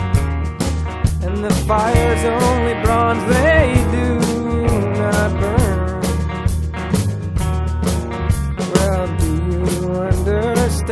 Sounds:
Music

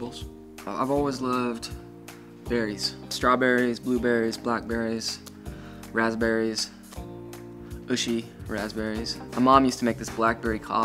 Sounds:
Speech, Music

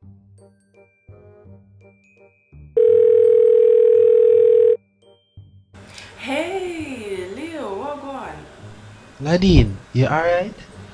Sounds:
Music, Speech

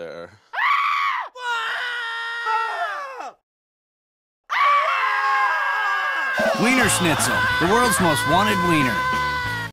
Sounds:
Speech, Music

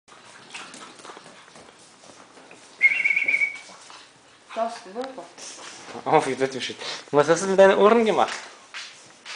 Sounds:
Speech, Domestic animals, Animal

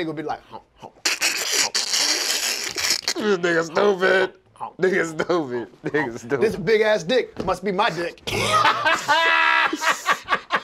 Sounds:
Speech, inside a small room

